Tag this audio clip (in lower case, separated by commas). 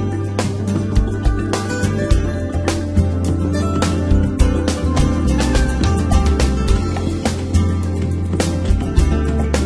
music